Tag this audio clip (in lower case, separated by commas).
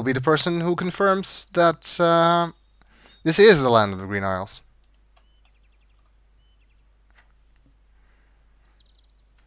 speech, outside, rural or natural